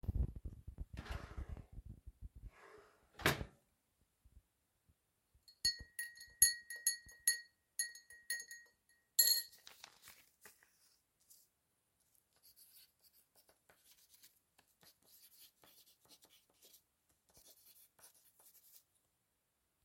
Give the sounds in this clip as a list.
wardrobe or drawer, cutlery and dishes